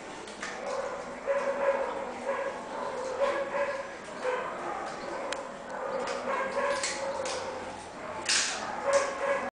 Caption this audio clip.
Water is running as two dogs are growling and barking and something is being snapped